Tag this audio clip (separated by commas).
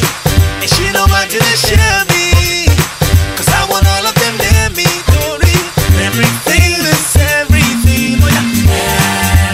Music